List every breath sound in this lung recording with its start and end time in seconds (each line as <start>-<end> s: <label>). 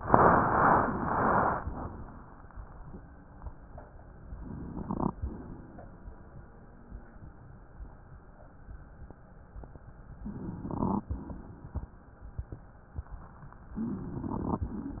4.18-5.16 s: crackles
4.19-5.16 s: inhalation
5.17-6.48 s: exhalation
10.19-11.09 s: crackles
10.22-11.09 s: inhalation
11.09-12.02 s: exhalation
13.78-14.63 s: inhalation
13.78-14.63 s: crackles